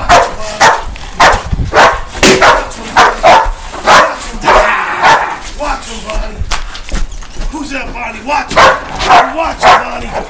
A dog barks followed by a man speaking